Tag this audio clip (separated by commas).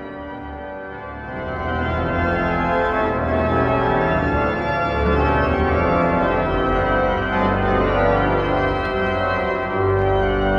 playing electronic organ